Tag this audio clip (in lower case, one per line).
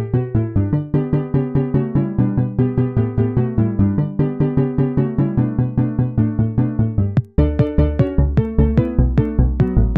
music